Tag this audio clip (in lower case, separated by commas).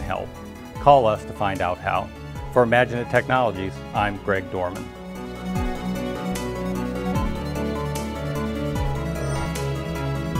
music, speech